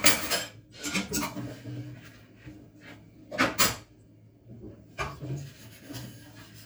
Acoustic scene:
kitchen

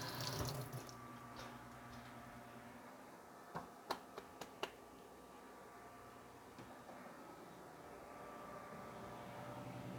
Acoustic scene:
kitchen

